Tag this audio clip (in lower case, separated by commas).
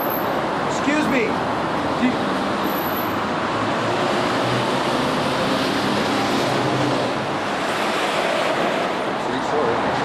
speech